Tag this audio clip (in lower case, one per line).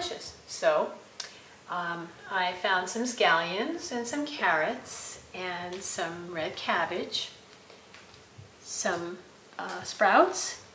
speech